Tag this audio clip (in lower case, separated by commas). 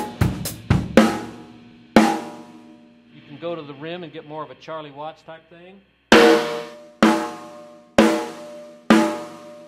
playing snare drum